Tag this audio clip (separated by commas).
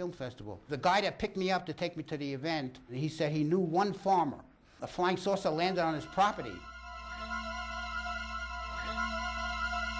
Speech, Music